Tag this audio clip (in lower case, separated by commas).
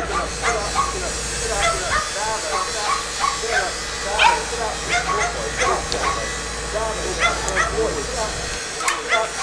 domestic animals, animal, outside, urban or man-made, speech